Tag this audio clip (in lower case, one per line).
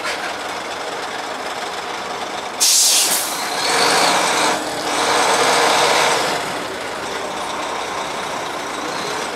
truck
vehicle